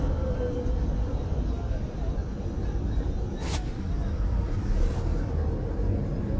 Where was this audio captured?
in a car